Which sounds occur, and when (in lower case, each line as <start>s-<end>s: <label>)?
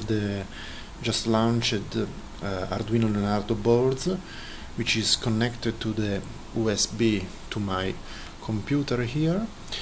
0.0s-9.8s: background noise
0.1s-0.4s: male speech
0.9s-2.0s: male speech
2.3s-4.2s: male speech
4.7s-6.2s: male speech
6.5s-8.0s: male speech
8.4s-9.5s: male speech
9.7s-9.8s: male speech